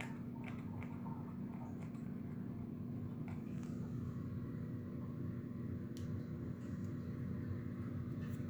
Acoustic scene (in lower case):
restroom